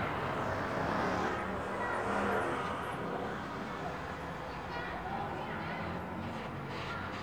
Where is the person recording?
in a residential area